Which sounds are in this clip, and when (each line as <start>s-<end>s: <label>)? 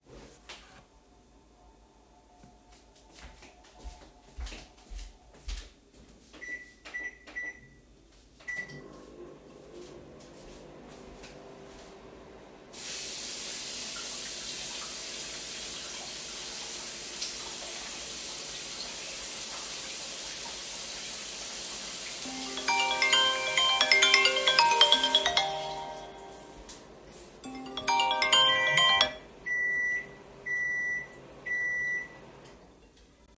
3.0s-6.1s: footsteps
6.3s-33.4s: microwave
9.4s-12.4s: footsteps
12.7s-26.3s: running water
22.4s-29.2s: phone ringing